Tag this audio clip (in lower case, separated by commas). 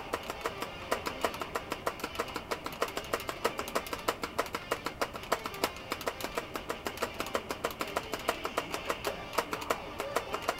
music, guitar, acoustic guitar, musical instrument, plucked string instrument